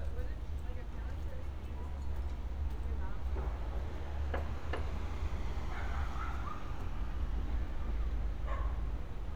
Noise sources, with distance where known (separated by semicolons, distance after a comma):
person or small group talking, far; dog barking or whining, far